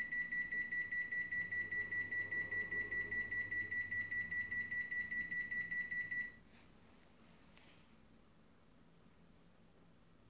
Repeating beeping sound